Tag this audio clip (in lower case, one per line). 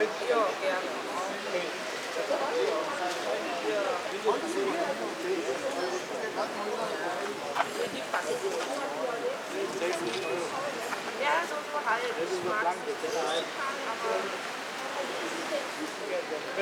speech
human group actions
crowd
conversation
human voice